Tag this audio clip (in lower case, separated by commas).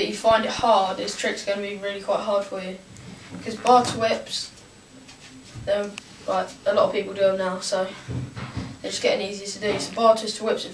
speech